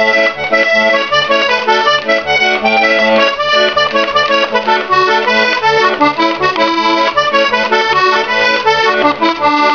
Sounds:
Music

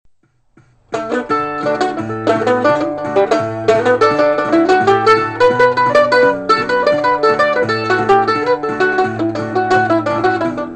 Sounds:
Music, playing banjo, Banjo

